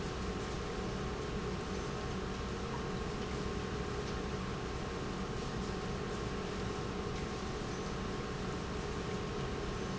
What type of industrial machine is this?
pump